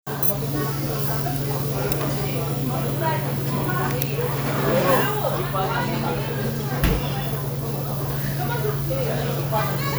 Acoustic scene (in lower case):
restaurant